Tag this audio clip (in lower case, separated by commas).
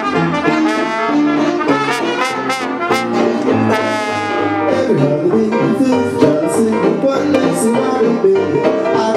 saxophone, music, jazz, musical instrument, brass instrument, trombone, trumpet